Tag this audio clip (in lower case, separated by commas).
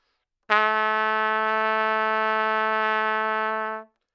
brass instrument, trumpet, music, musical instrument